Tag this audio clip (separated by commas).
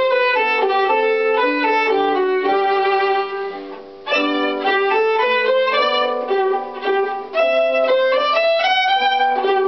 Musical instrument, Music, fiddle